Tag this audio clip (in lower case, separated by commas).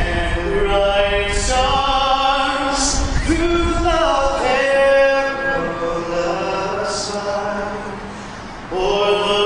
male singing